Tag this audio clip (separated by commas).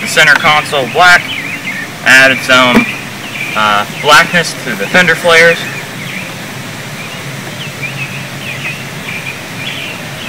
Speech